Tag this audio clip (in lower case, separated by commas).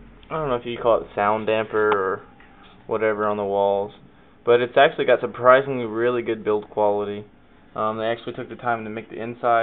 speech